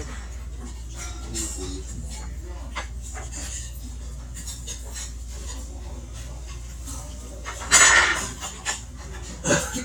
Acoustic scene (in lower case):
restaurant